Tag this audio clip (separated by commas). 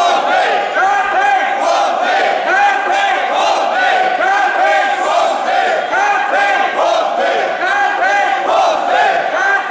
Speech, inside a large room or hall